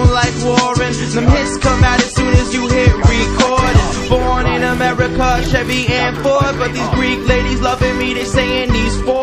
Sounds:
music

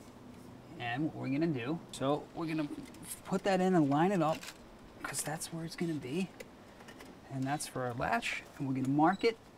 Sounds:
speech

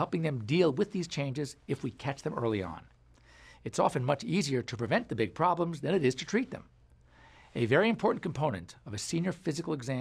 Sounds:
speech

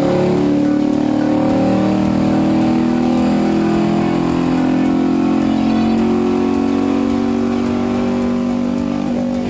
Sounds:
music

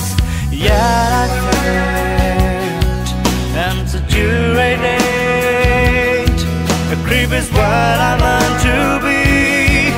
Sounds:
music

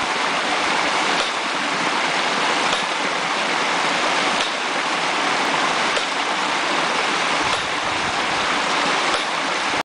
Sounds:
water
pump (liquid)

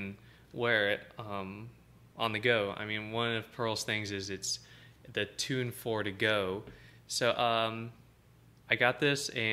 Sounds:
speech

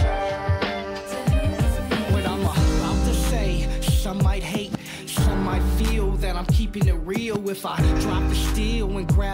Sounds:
exciting music
music

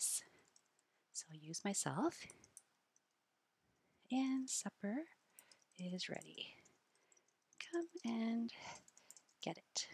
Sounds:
speech

